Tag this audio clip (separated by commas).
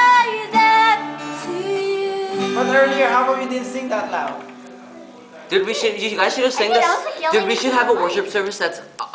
Music, Speech